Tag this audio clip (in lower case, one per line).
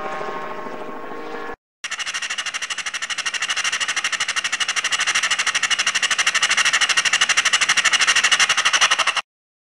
helicopter
vehicle